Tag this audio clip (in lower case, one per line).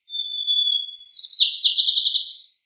bird
bird call
wild animals
animal